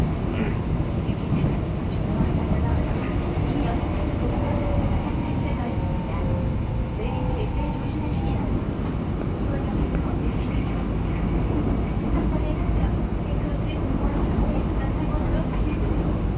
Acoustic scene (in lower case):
subway train